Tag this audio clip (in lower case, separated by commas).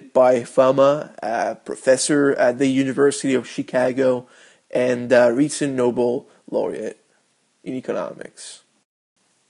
speech